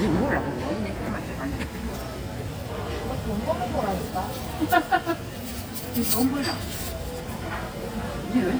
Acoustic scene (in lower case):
cafe